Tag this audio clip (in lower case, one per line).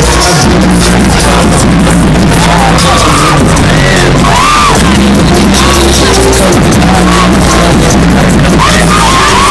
music